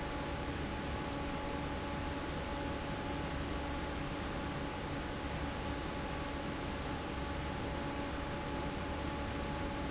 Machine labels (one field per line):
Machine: fan